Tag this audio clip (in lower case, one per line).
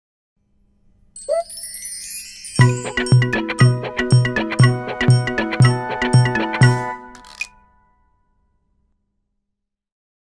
music